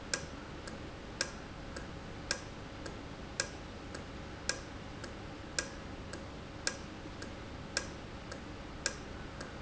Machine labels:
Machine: valve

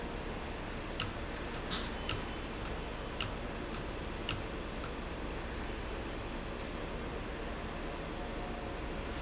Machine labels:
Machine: valve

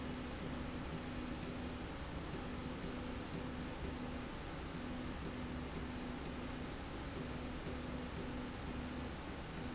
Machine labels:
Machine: slide rail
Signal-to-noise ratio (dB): 0 dB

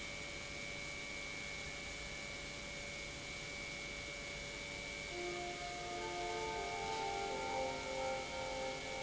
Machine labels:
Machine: pump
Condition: normal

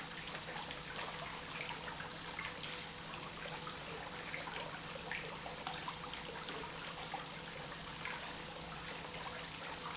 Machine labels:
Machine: pump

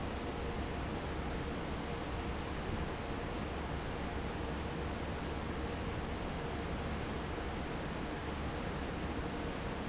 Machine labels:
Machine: fan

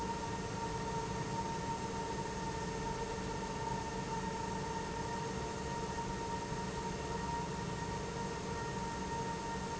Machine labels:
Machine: pump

